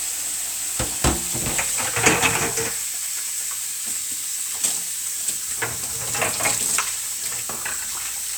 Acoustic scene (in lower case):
kitchen